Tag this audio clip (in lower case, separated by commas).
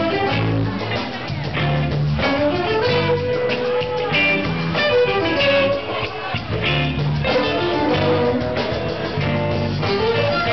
speech, music